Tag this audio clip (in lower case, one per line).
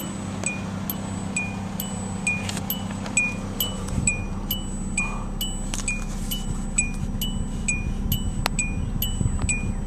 music
vehicle